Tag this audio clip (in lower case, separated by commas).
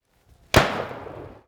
explosion, gunshot